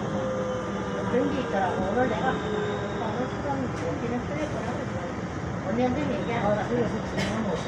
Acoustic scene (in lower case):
subway train